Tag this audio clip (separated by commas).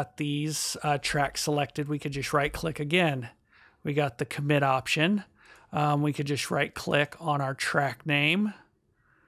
Speech